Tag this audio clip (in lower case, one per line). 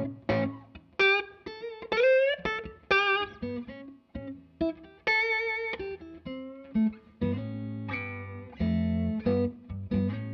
musical instrument
guitar
music